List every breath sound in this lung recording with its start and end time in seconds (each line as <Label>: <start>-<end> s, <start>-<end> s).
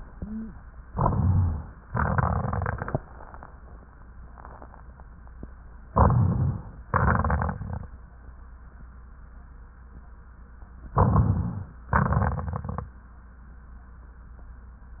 Inhalation: 0.87-1.84 s, 5.91-6.85 s, 10.94-11.91 s
Exhalation: 1.85-3.00 s, 6.90-7.93 s, 11.91-12.96 s
Rhonchi: 0.92-1.66 s
Crackles: 1.85-3.00 s, 6.90-7.93 s, 11.91-12.96 s